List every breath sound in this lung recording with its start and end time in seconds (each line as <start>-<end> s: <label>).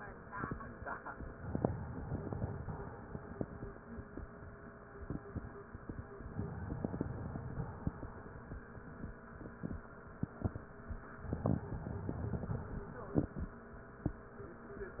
1.37-2.54 s: inhalation
2.54-3.61 s: exhalation
6.32-7.38 s: inhalation
7.38-8.37 s: exhalation
11.42-12.51 s: inhalation
12.51-13.62 s: exhalation